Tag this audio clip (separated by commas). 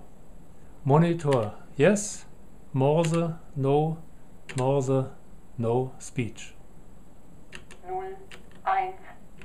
Speech, man speaking, Female speech, monologue